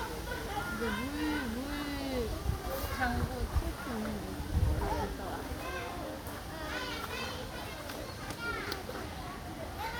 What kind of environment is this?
park